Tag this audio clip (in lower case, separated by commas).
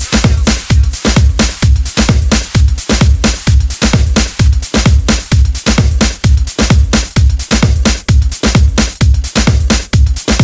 music